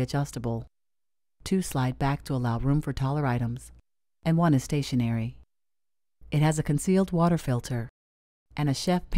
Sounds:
speech

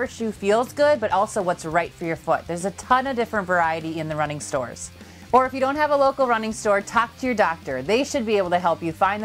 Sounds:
music
speech

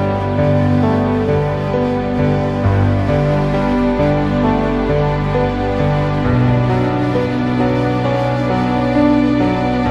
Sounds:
music

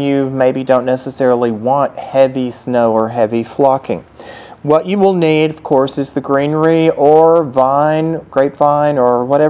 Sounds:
speech

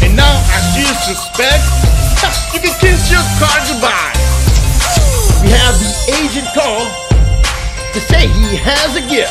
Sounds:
music

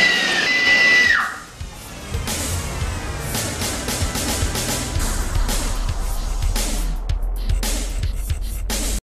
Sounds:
music

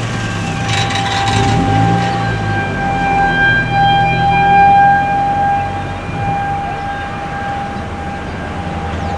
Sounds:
siren
bus

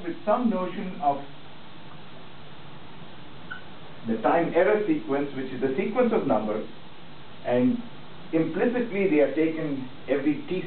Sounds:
speech

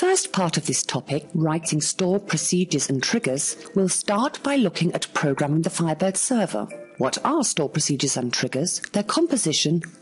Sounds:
speech
music

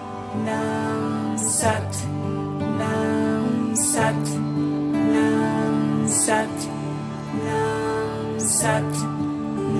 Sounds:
mantra
music

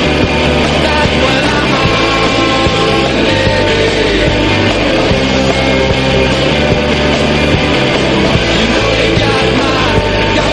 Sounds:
punk rock

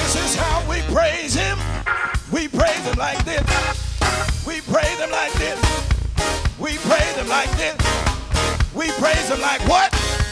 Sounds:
music

